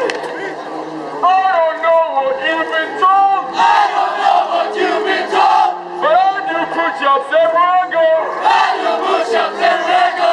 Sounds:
outside, urban or man-made
speech

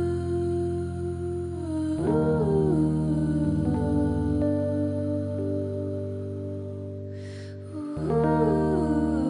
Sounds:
music

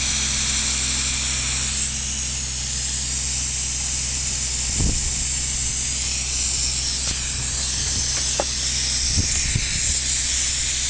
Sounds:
engine

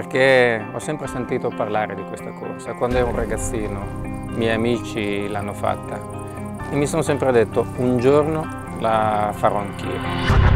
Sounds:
speech
music

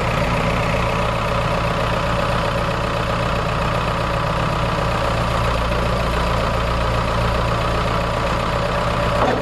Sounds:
vehicle

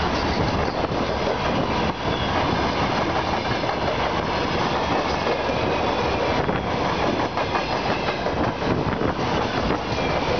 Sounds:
train

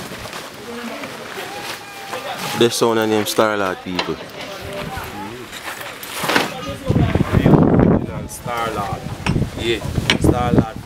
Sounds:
speech

